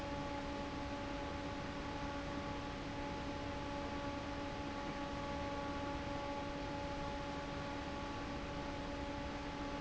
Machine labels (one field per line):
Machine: fan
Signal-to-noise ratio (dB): 0 dB